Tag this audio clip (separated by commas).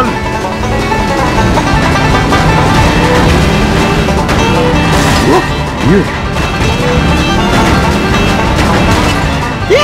Music